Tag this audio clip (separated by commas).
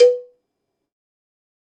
Bell, Cowbell